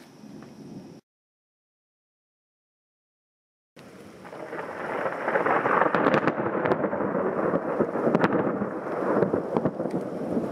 Thunder and thunderstorm with rustling noise